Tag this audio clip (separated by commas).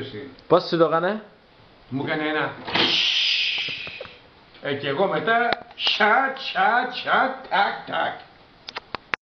inside a small room, Speech